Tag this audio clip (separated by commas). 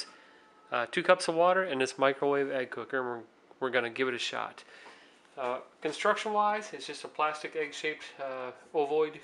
Speech